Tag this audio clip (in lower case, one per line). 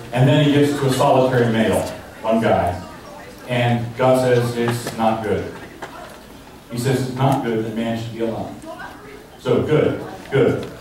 male speech
speech
monologue